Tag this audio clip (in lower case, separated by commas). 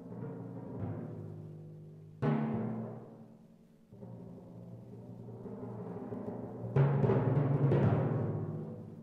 percussion, drum